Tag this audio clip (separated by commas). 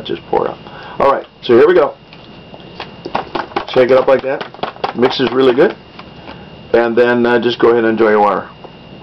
Speech, inside a small room